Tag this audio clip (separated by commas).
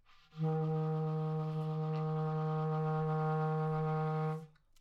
Music, Musical instrument, Wind instrument